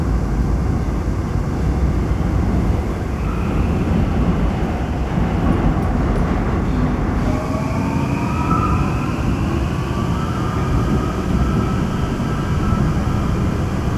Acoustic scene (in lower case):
subway train